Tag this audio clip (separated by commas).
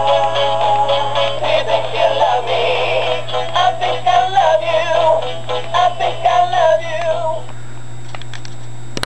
Music, Male singing